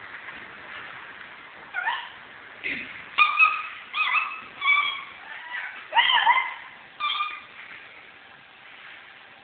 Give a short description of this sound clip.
A cat is whimpering